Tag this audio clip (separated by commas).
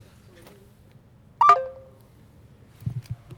Alarm, Human group actions, Ringtone, Chatter, Telephone